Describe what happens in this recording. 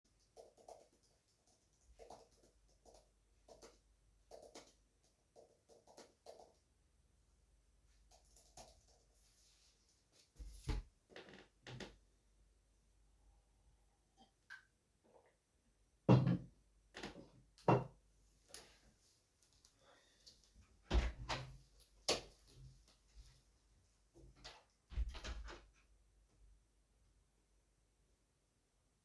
I typed on my laptop keyboard, then put it aside, stood from the bed, and took a sip out of my coffee mug. Then I opened the door, flipped the lightswitch and closed the door from the other side.